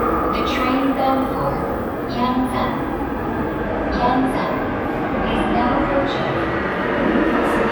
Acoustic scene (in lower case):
subway station